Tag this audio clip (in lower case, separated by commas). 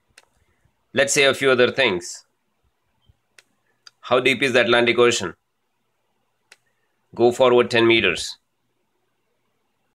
speech, male speech